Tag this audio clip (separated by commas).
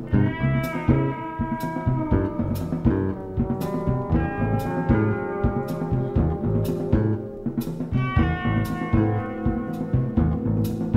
Music